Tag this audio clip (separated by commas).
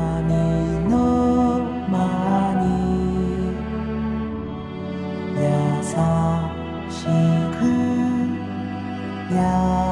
Lullaby, Music